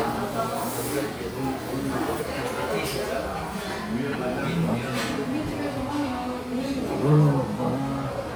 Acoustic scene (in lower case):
crowded indoor space